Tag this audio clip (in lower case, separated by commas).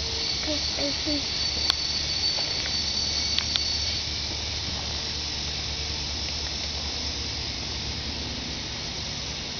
speech